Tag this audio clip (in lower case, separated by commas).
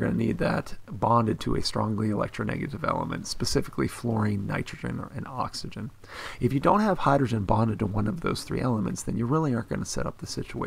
monologue, speech